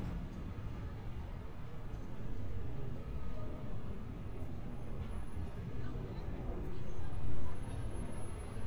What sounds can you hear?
person or small group talking